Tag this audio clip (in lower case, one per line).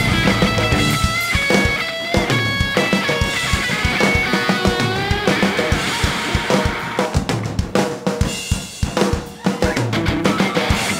bass drum
percussion
snare drum
drum kit
rimshot
drum
drum roll